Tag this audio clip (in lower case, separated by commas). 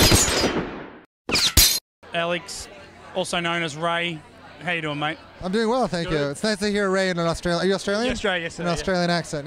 inside a large room or hall, speech